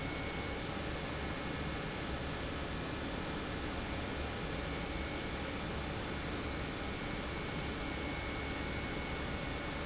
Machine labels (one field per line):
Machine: pump